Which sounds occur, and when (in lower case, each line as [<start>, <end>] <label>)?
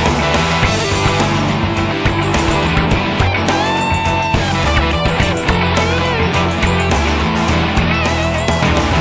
[0.00, 9.00] music